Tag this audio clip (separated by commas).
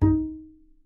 Music, Bowed string instrument, Musical instrument